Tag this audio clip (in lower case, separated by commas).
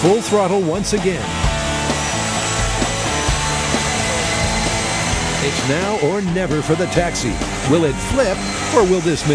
vehicle, jet engine